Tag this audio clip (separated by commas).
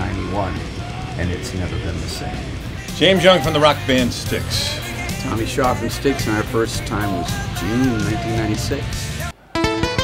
Music, Speech